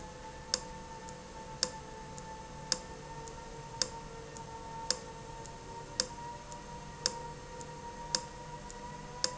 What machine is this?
valve